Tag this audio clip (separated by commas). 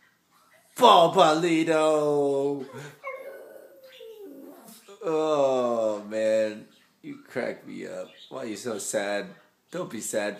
Whimper (dog), Animal, Speech, pets, Dog